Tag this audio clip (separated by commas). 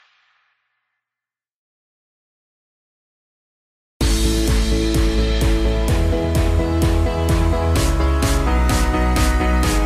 Music